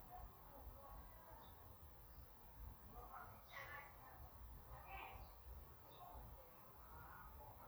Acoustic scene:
park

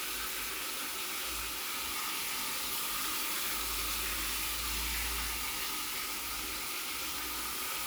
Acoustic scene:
restroom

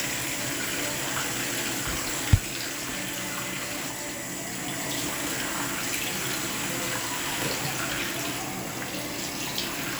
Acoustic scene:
restroom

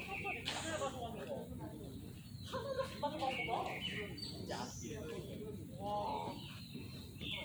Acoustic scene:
park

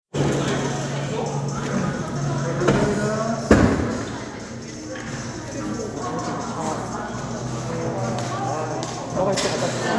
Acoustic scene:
cafe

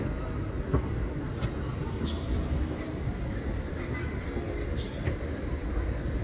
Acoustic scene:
park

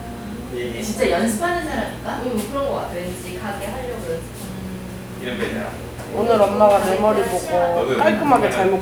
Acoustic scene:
crowded indoor space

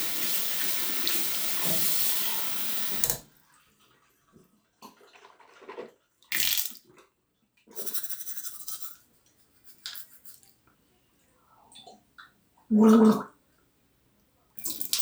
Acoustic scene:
restroom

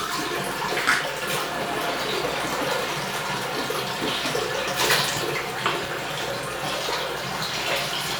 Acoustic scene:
restroom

